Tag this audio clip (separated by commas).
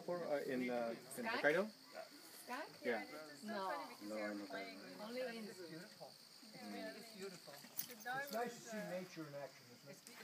Speech